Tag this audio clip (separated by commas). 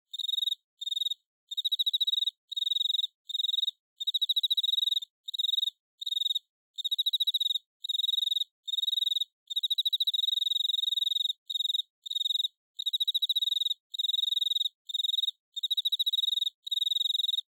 Wild animals, Animal, Cricket, Insect